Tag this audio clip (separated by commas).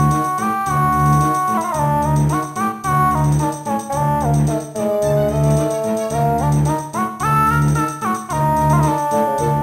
Music, Video game music